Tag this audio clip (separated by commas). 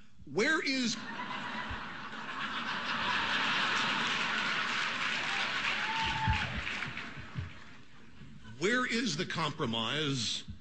Male speech, monologue, Speech